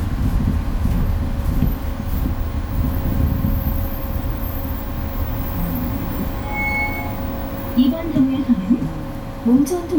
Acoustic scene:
bus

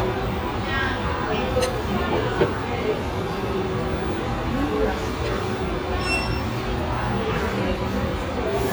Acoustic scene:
restaurant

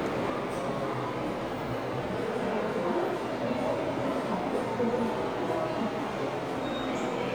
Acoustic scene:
subway station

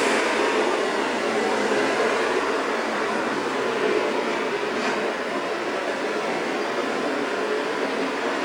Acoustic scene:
street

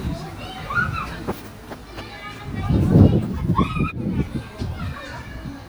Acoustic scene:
park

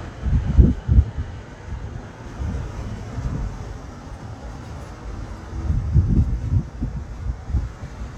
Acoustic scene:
street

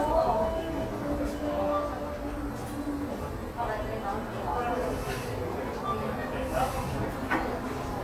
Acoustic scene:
cafe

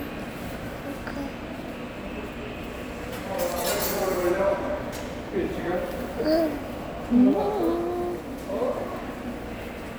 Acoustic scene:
subway station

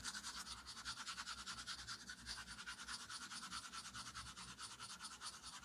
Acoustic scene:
restroom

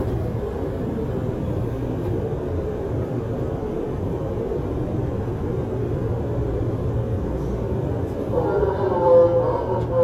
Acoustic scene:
subway train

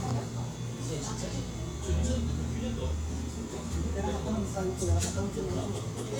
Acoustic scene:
cafe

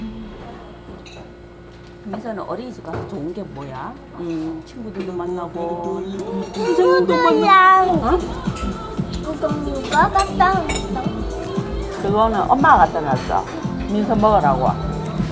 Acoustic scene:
restaurant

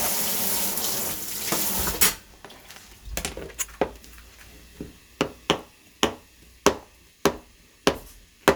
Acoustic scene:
kitchen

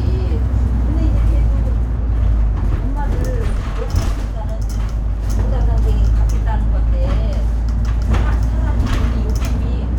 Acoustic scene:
bus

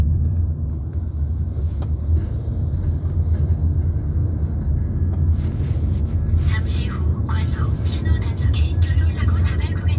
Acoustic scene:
car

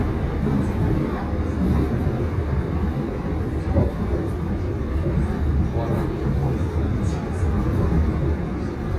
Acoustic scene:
subway train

